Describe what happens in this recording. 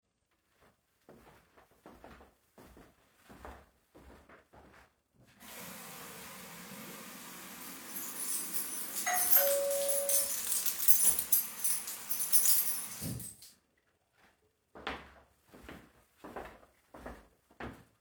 Walking to the sink and turning the water on. Move my keys around. Doorbell rings. I stop moving the keys and turn the water off. I walk to the door.